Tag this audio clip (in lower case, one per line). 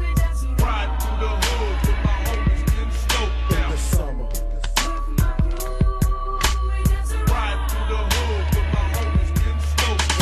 hip hop music
music